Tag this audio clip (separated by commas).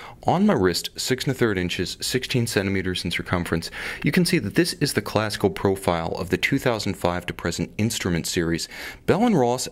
Speech